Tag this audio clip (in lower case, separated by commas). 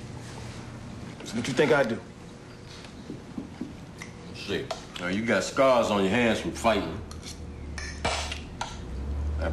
inside a large room or hall, speech